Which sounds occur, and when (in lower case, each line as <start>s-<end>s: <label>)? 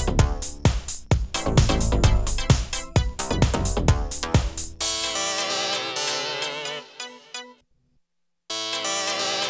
0.0s-7.6s: music
0.0s-9.4s: background noise
8.5s-9.4s: music